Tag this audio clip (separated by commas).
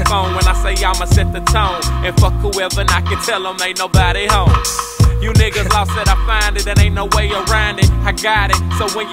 Music